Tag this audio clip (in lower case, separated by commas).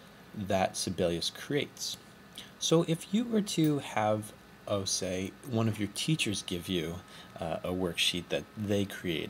speech